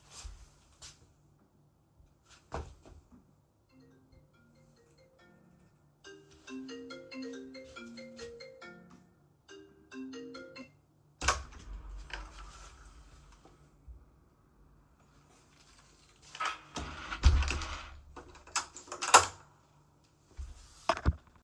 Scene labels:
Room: living room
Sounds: footsteps, phone ringing, door (more than once)

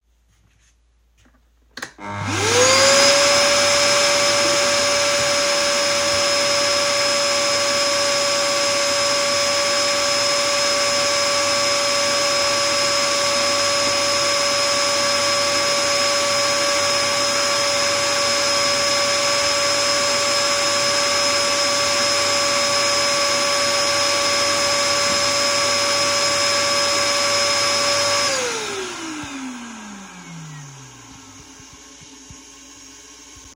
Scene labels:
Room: kitchen, lavatory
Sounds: footsteps, vacuum cleaner, toilet flushing

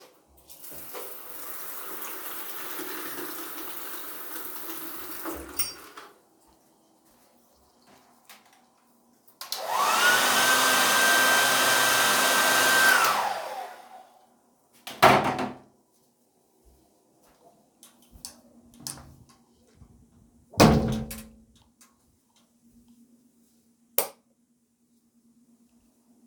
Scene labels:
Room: bathroom, hallway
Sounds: running water, footsteps, door, light switch

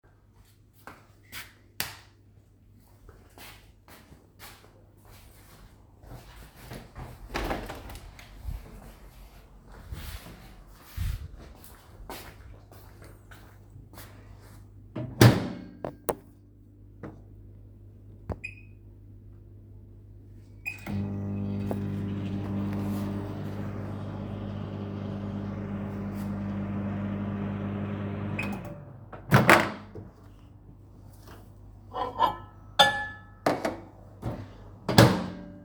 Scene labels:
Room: kitchen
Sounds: footsteps, light switch, window, microwave, cutlery and dishes

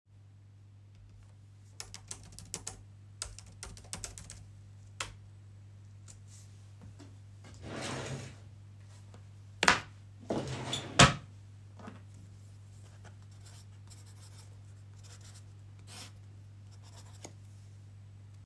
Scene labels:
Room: bedroom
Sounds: keyboard typing, wardrobe or drawer (more than once)

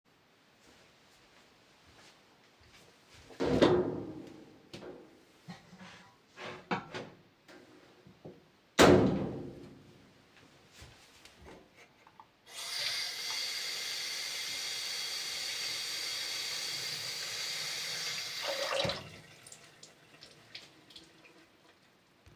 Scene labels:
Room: kitchen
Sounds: footsteps, wardrobe or drawer (more than once), running water

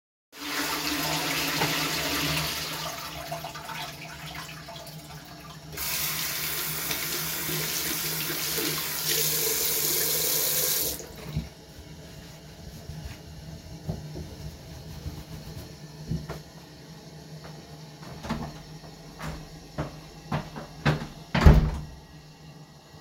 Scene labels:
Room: lavatory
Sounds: toilet flushing, running water, footsteps, door (more than once)

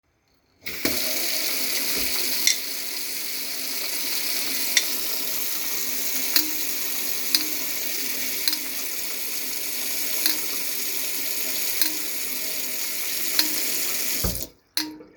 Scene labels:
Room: kitchen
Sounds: running water, cutlery and dishes

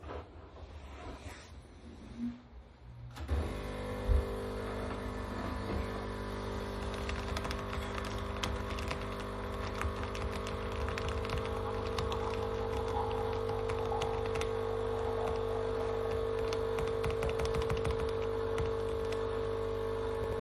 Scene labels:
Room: bedroom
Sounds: coffee machine, keyboard typing

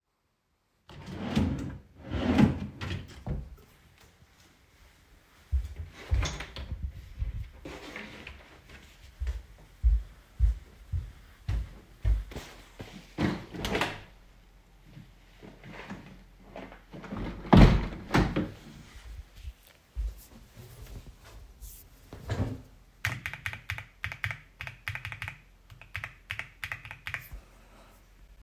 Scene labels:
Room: lavatory, hallway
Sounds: wardrobe or drawer (more than once), footsteps, window (more than once), keyboard typing

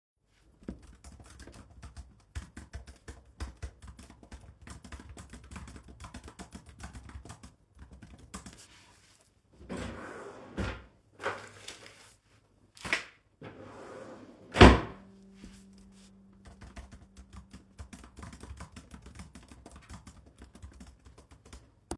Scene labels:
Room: office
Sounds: keyboard typing, wardrobe or drawer (more than once)

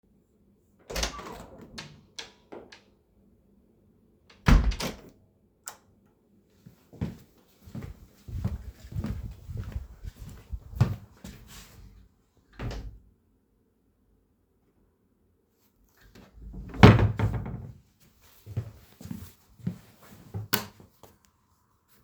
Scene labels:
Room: hallway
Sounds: door (more than once), light switch, footsteps

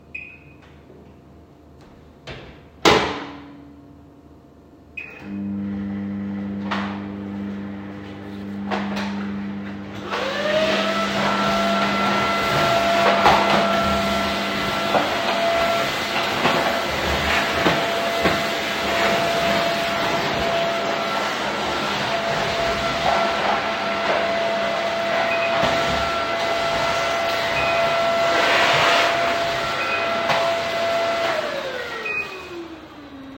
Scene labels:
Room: kitchen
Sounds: microwave, vacuum cleaner

